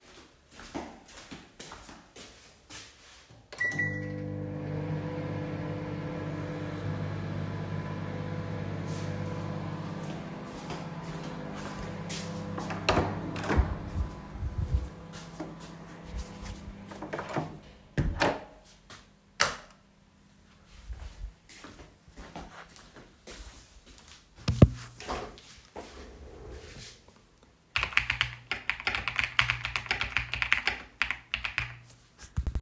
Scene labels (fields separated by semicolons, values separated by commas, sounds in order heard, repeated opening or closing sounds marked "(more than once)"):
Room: bedroom; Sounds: footsteps, microwave, door (more than once), light switch, keyboard typing